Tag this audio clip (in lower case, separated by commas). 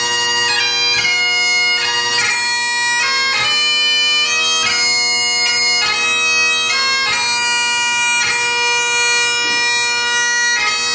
bagpipes, woodwind instrument